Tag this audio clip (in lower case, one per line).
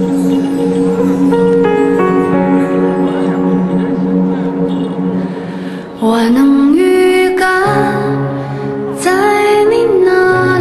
female singing
music